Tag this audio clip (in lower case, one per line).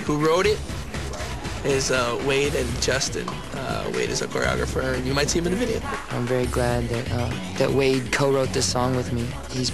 speech
music